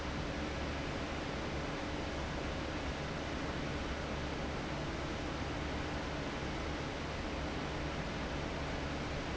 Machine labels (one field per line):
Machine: fan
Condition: abnormal